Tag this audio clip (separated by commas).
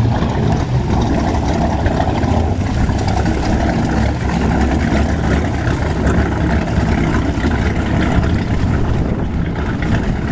Engine, speedboat, Vehicle